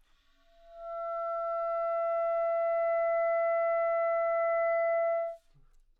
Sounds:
Musical instrument, Music, Wind instrument

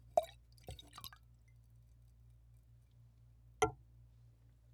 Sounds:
Liquid

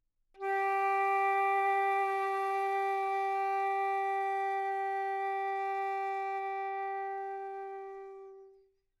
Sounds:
Musical instrument, Music, Wind instrument

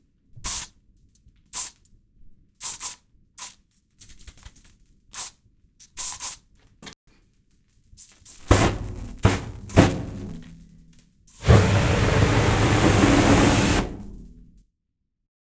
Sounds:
Fire

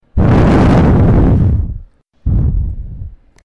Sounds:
Wind

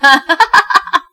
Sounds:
Human voice, Laughter

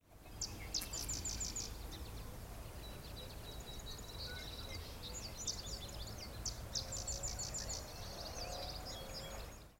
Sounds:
Bird, Animal, Wild animals

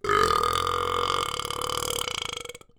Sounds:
eructation

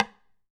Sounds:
Wood, Tap

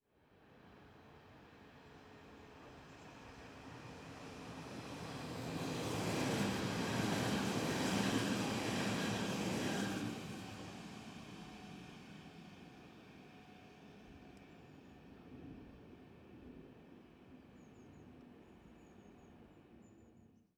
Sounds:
Rail transport, Train, Vehicle

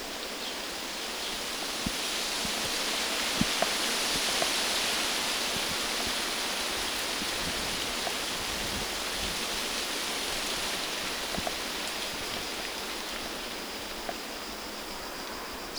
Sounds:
Wind

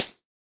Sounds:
Percussion, Musical instrument, Music, Hi-hat, Cymbal

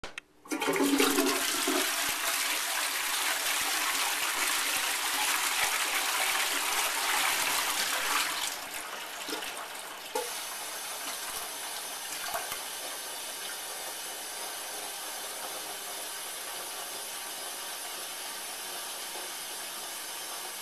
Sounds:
Domestic sounds, Toilet flush

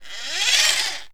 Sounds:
Engine

